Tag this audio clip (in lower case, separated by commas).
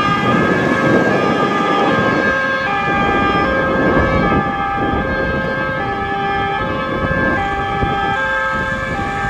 civil defense siren